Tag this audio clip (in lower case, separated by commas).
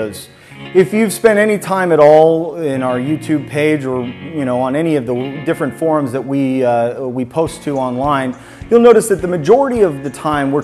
speech, music